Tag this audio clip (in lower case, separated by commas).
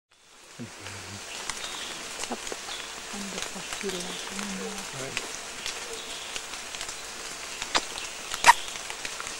speech, outside, rural or natural